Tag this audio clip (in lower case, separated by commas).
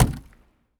door, wood, slam, domestic sounds